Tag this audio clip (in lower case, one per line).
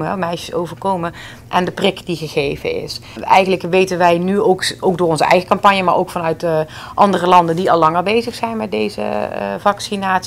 speech